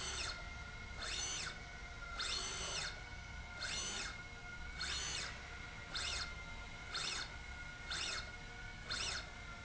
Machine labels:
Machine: slide rail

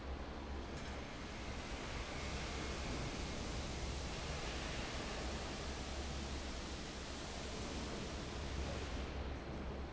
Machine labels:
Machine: fan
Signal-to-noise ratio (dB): 0 dB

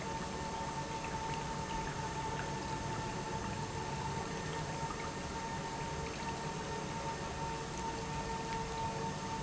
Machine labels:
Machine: pump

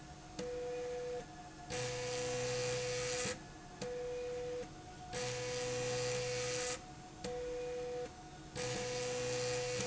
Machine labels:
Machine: slide rail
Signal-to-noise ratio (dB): 6 dB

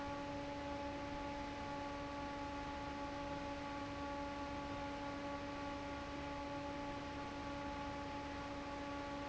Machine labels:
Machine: fan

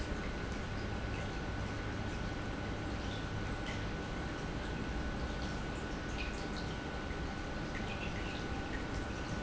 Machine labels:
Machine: pump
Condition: normal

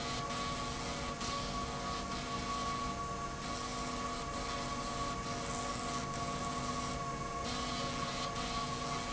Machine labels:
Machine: slide rail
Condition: abnormal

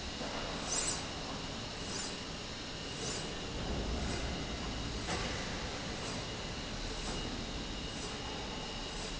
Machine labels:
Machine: slide rail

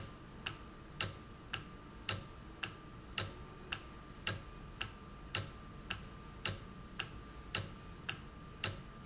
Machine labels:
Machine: valve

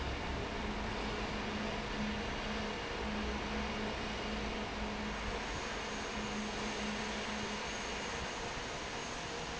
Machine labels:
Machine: fan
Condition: normal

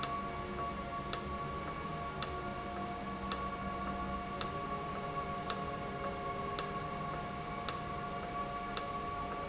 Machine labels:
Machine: valve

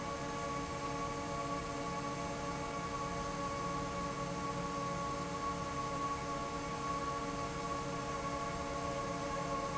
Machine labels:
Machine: fan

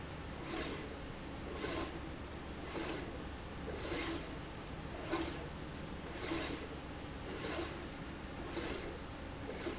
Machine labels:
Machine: slide rail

